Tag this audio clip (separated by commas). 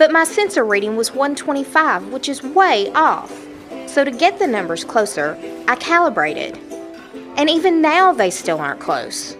Speech, Music